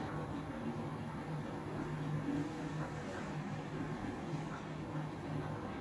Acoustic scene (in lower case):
elevator